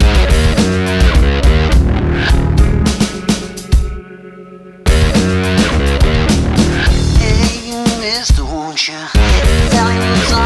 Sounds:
music

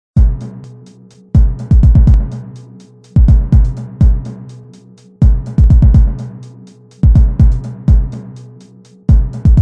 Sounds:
drum machine
music

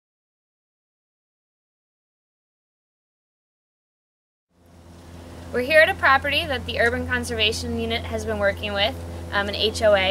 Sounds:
speech

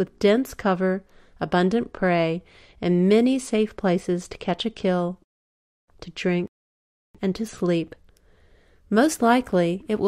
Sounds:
speech

